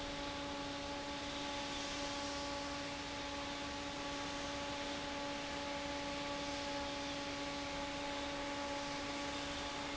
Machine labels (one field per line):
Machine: fan